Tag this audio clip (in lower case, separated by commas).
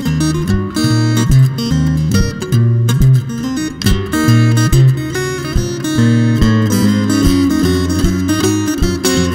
music, strum, blues, plucked string instrument, guitar, musical instrument